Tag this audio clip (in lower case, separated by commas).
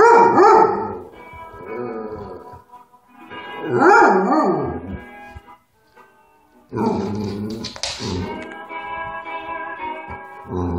dog howling